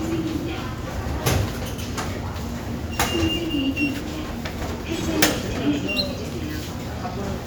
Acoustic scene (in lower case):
subway station